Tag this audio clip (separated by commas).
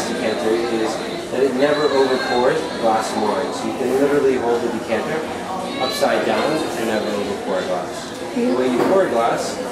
Speech, inside a large room or hall